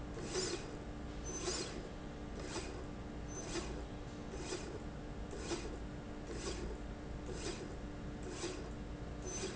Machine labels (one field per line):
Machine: slide rail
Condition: normal